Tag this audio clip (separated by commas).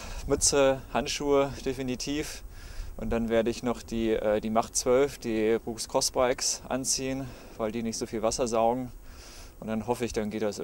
Speech